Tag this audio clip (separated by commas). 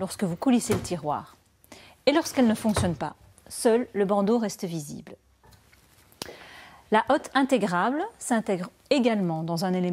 Speech